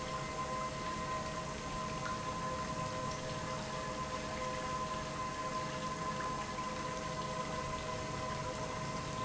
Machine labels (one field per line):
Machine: pump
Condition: normal